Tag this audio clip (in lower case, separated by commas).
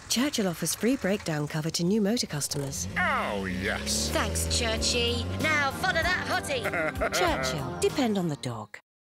car, speech, vehicle